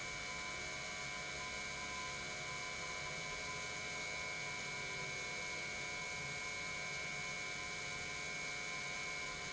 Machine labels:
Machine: pump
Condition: normal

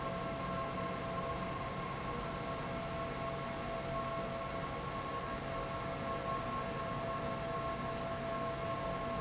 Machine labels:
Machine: fan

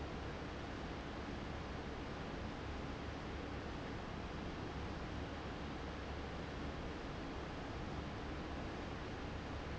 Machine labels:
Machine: fan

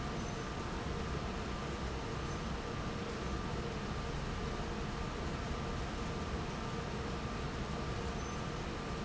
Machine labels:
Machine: fan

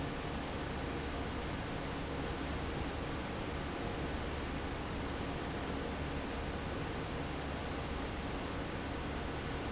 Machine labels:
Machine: fan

